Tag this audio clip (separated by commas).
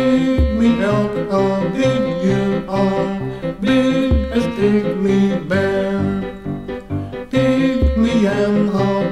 Music